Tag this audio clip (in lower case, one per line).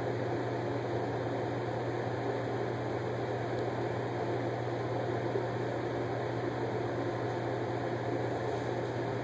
silence
inside a small room